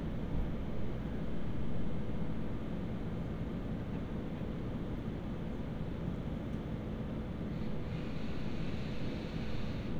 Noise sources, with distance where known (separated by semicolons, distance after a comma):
unidentified powered saw, far